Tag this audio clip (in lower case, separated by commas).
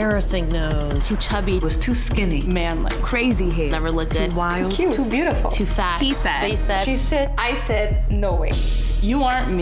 speech, music